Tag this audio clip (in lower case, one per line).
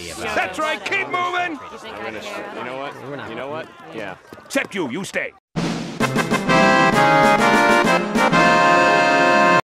music
speech